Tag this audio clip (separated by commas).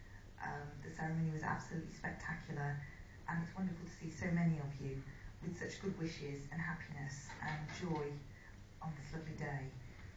Narration, Female speech, Speech